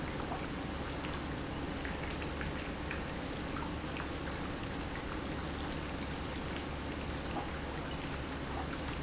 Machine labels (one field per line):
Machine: pump